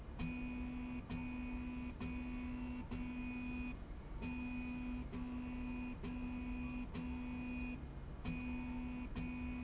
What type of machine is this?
slide rail